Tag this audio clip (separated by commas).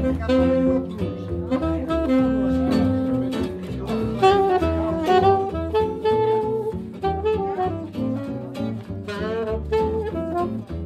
Speech, Music